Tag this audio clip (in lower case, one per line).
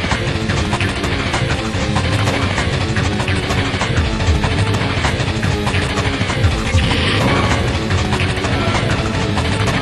music